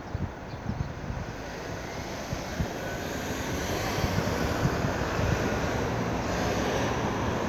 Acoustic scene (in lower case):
street